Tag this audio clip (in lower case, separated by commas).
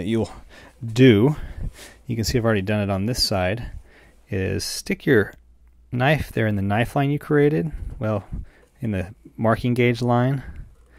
speech